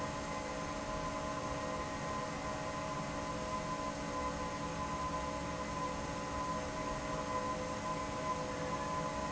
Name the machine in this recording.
fan